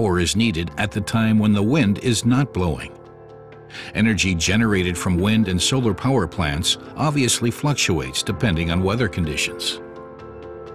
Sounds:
Speech, Music

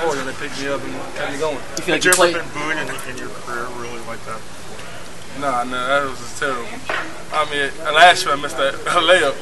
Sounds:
Speech, Crowd

